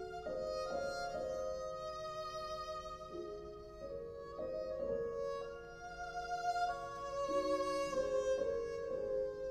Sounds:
musical instrument
fiddle
music

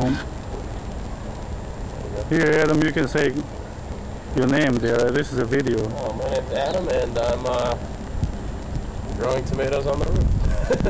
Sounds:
speech
outside, urban or man-made

